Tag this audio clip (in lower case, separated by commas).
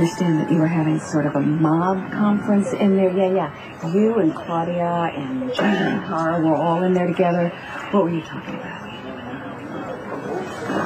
speech